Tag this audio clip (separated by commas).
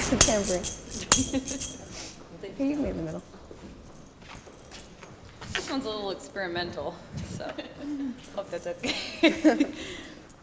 Speech, Music